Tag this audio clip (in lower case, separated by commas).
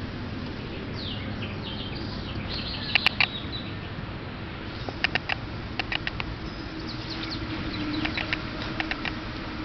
animal